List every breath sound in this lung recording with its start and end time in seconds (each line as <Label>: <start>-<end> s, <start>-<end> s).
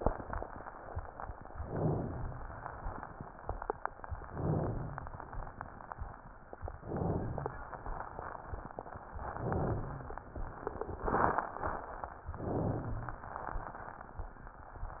Inhalation: 1.50-2.45 s, 4.23-5.18 s, 6.83-7.65 s, 9.37-10.19 s, 12.35-13.17 s